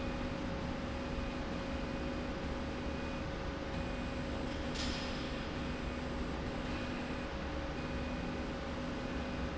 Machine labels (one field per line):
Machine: slide rail